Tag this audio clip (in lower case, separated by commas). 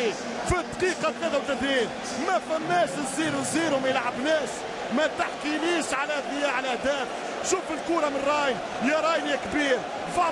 speech